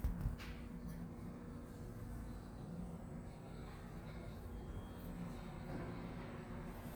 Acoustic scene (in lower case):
elevator